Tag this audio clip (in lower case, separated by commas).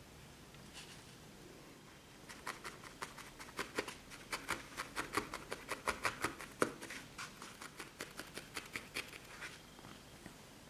inside a small room